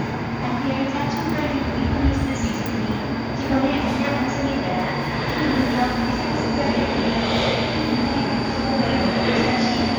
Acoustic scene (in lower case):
subway station